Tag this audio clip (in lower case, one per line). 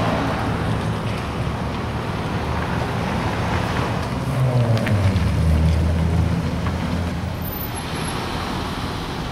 vehicle